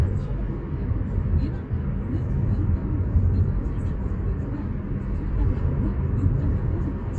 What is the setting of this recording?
car